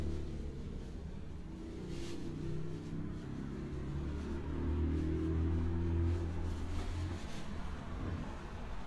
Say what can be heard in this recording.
medium-sounding engine